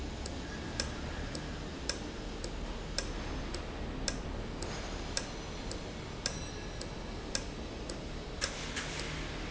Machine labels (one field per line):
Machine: valve